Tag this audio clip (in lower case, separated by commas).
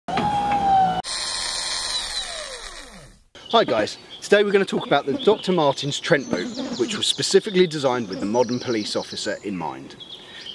speech, drill, male speech